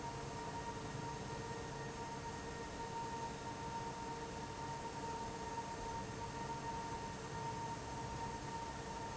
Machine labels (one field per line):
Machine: fan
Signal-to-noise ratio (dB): 0 dB